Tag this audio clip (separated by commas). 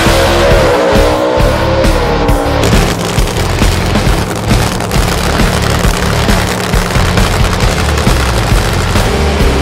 Car passing by